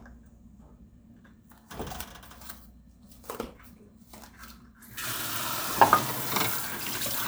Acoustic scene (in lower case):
kitchen